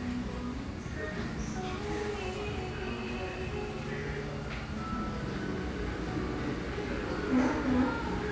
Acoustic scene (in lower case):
restaurant